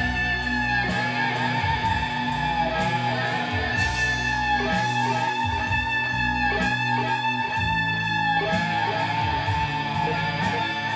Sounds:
electric guitar, musical instrument, guitar, music, plucked string instrument

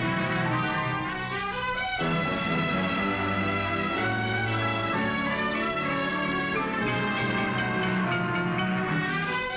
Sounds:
music

